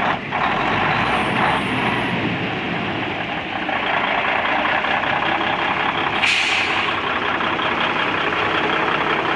A large engine idling and humming